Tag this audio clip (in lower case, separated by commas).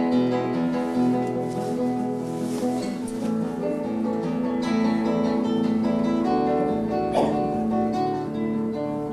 strum, acoustic guitar, musical instrument, music, guitar, plucked string instrument